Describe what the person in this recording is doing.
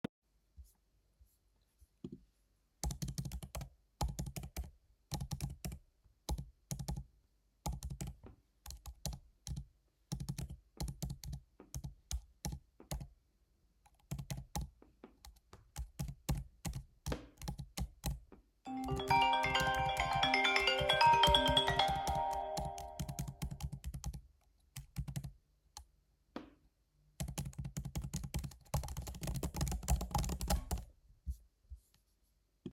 I was typing on my laptop and my iphone 13 srarted ringing. I turned off the phone and continued typing.